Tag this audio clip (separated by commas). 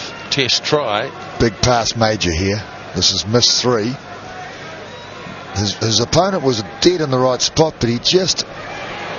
Speech